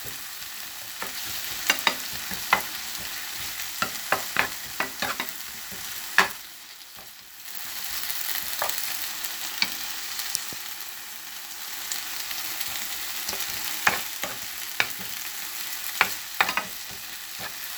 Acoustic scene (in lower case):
kitchen